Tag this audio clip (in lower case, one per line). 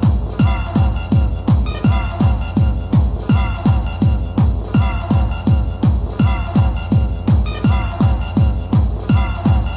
music
electronic music
techno